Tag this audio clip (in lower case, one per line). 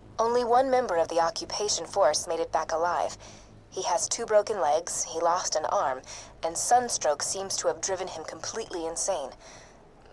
speech